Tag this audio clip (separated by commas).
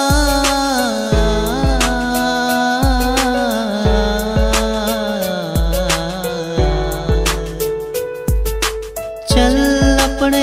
Music